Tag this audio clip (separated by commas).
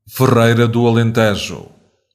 Human voice